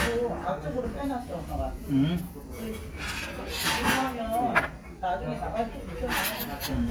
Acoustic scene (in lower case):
restaurant